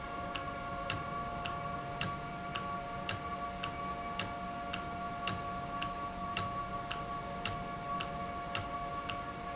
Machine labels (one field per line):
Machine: valve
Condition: normal